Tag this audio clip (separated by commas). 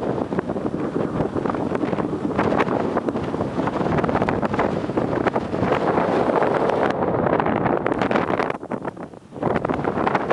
Wind noise (microphone), outside, rural or natural, wind noise